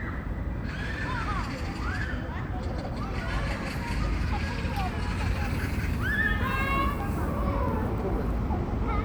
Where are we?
in a park